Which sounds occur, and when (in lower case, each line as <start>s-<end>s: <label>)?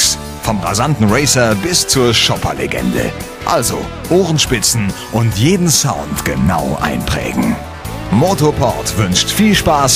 0.0s-9.9s: music
0.4s-3.1s: man speaking
3.4s-3.8s: man speaking
4.0s-7.6s: man speaking
8.1s-9.9s: man speaking